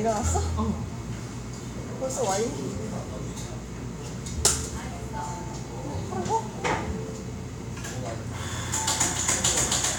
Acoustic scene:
cafe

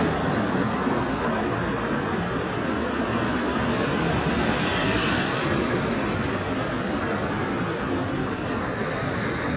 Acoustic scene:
street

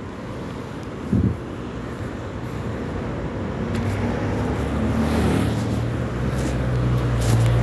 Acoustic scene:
residential area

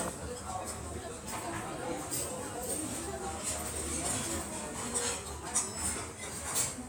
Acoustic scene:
restaurant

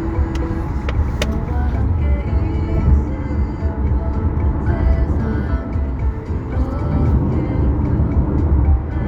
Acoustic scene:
car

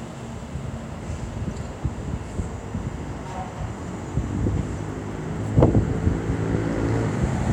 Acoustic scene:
street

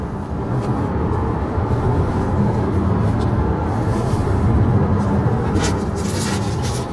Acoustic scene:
car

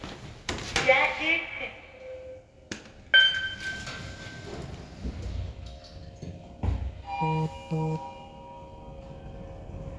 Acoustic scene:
elevator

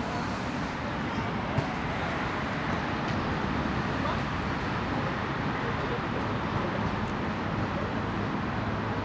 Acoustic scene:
residential area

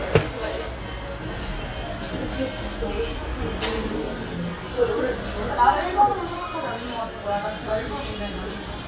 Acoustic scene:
cafe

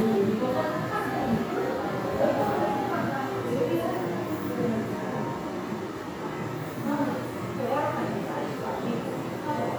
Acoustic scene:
crowded indoor space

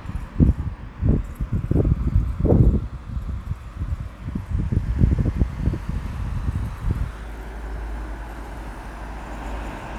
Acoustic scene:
street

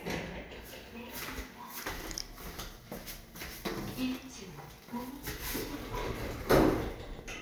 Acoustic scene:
elevator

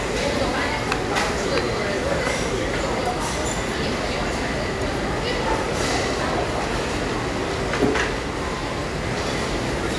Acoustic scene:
crowded indoor space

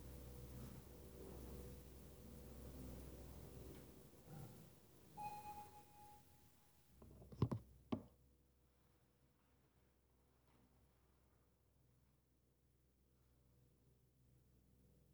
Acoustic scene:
elevator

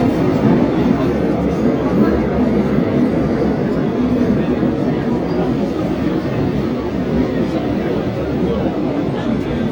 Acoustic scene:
subway train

